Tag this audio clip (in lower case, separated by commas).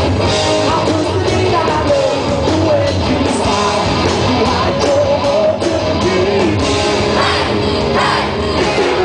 inside a large room or hall, music, singing